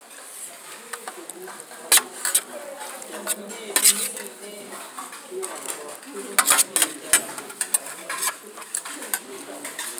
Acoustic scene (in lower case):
kitchen